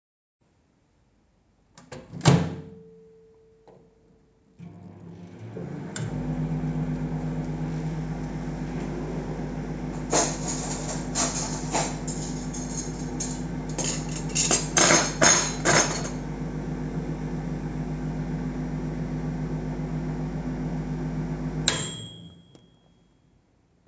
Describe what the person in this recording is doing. I closed the microwave, started it, opened a drawer and put out some cutlery while the microwave was running. The microwave was finished after a few seconds.